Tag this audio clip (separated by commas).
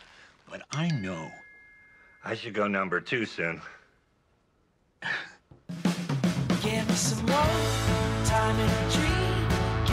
Speech, Country, Music